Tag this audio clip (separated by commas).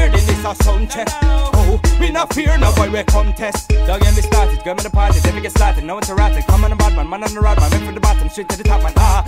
Music